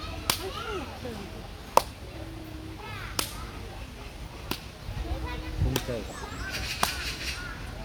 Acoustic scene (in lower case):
park